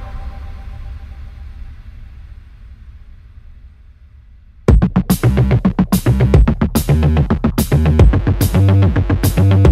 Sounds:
dubstep, music

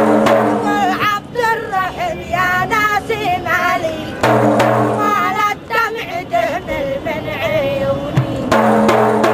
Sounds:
music

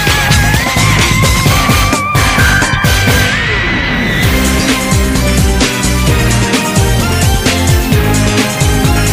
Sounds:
music

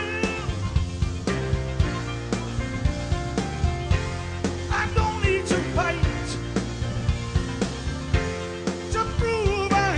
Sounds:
singing, music

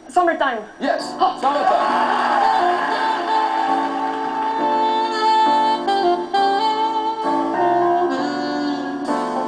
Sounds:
music, speech

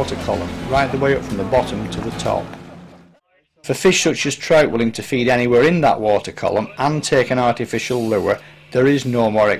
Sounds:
speech, music

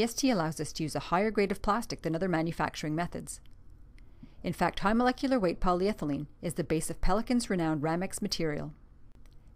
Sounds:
speech

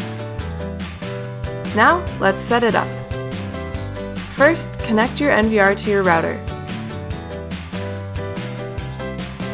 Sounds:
music, speech

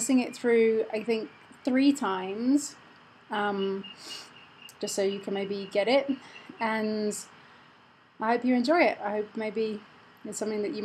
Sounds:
speech

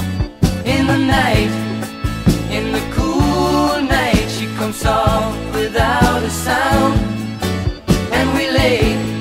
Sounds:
music

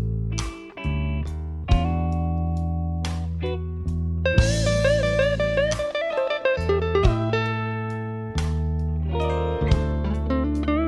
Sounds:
plucked string instrument, musical instrument, electric guitar, guitar, music

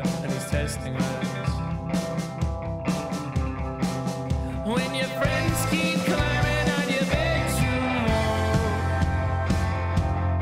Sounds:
music

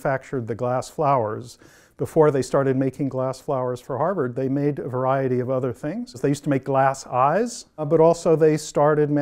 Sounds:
speech

